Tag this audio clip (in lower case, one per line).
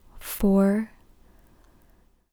human voice